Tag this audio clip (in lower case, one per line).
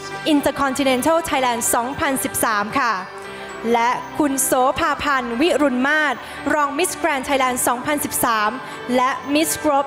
music
speech